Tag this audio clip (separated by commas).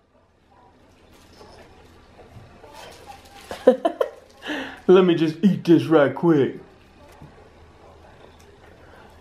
Speech